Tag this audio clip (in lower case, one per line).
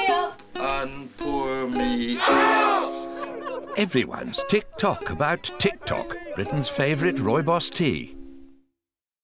speech
music